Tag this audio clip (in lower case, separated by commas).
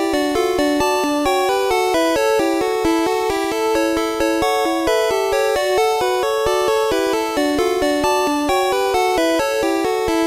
music, video game music, theme music